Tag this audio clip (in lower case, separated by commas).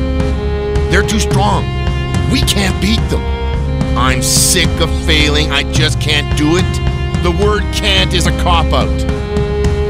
speech, music